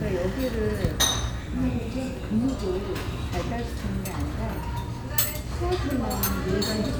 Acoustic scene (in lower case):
restaurant